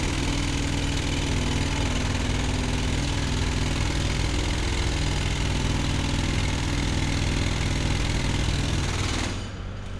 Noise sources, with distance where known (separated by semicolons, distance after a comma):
jackhammer, near